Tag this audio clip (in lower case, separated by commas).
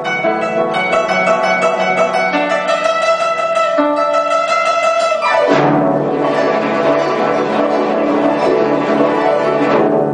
zither, pizzicato